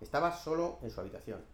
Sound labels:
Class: speech